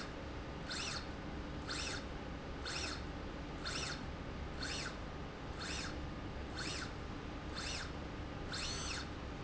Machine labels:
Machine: slide rail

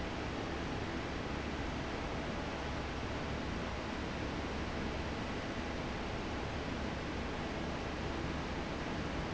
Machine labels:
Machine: fan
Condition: normal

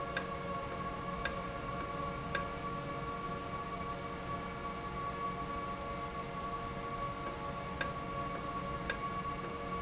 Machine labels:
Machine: valve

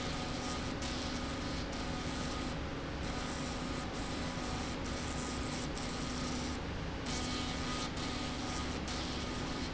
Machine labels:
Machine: slide rail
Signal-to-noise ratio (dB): -6 dB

